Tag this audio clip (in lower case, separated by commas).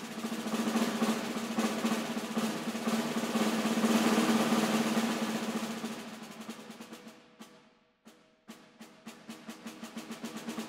playing snare drum